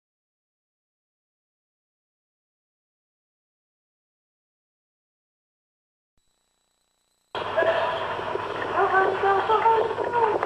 Muffled whimpering from an animal